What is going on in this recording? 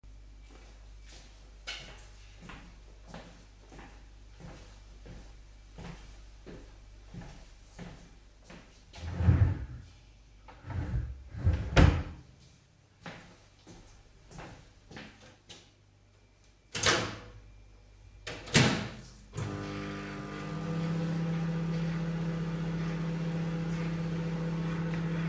I went to the drawer, opened and closed it. Then I walked to the microwave, opened and closed it, then turned it on.